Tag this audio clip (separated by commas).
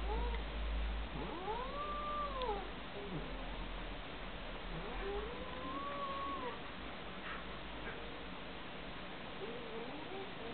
Animal, pets